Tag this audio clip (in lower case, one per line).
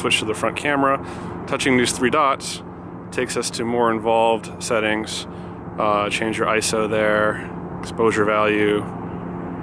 speech